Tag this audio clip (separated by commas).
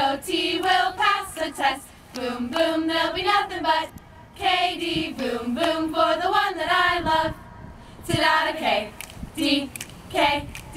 Mantra